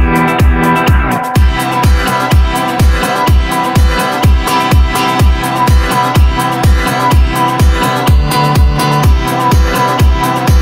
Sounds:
music

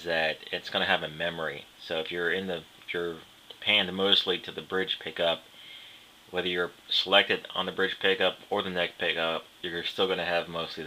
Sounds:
speech

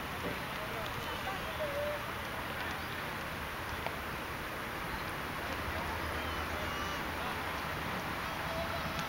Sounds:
vehicle
wind rustling leaves
rustling leaves
water vehicle
speech

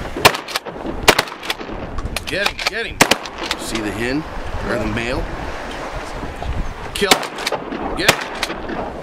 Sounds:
wind
wind noise (microphone)
ocean
surf

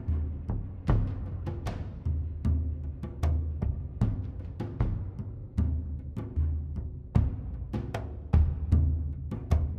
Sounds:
music
timpani

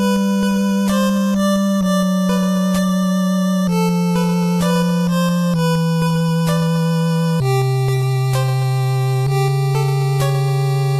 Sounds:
theme music
music

